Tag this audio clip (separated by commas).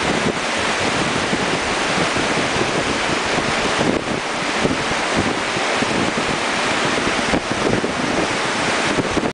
Rain, Rain on surface, Thunderstorm